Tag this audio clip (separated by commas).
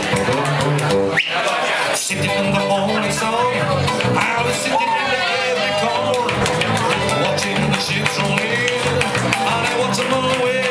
Music, Speech